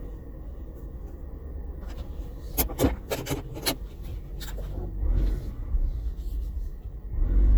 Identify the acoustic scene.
car